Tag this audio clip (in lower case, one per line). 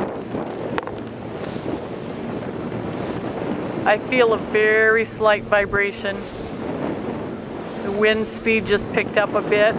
wind
speech